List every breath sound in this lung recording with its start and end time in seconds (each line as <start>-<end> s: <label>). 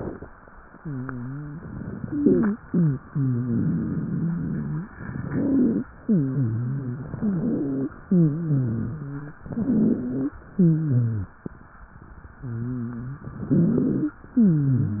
0.76-1.63 s: wheeze
2.03-2.53 s: wheeze
2.65-3.01 s: wheeze
3.05-4.28 s: exhalation
3.09-4.90 s: wheeze
5.28-5.86 s: inhalation
5.28-5.86 s: wheeze
6.02-7.09 s: wheeze
7.17-7.95 s: inhalation
7.17-7.95 s: wheeze
8.05-9.38 s: exhalation
8.05-9.38 s: wheeze
9.44-10.34 s: inhalation
9.44-10.34 s: wheeze
10.52-11.32 s: exhalation
10.52-11.32 s: wheeze
12.43-13.39 s: wheeze
13.43-14.18 s: inhalation
13.43-14.18 s: wheeze
14.34-15.00 s: exhalation
14.34-15.00 s: wheeze